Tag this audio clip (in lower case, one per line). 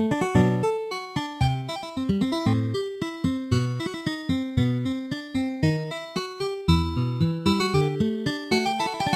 music
guitar
musical instrument
acoustic guitar